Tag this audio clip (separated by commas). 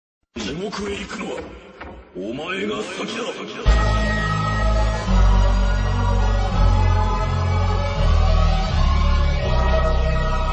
Music, Speech